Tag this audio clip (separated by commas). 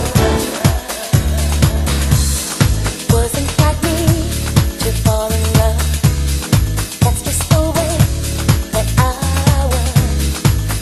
Music